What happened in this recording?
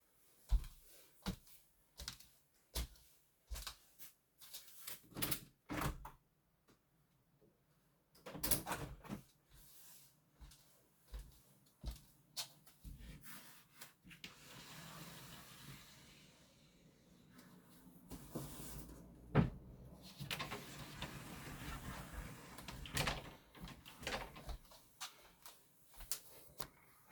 Walked to window, opned it, closed it, opned wardrobe, rummaged and closed it